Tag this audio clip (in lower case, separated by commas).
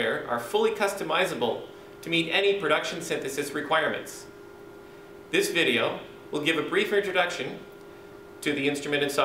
speech